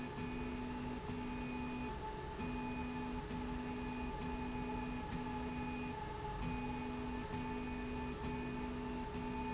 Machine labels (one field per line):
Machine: slide rail